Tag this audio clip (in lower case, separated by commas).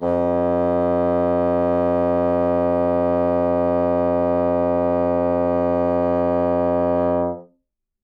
wind instrument, music, musical instrument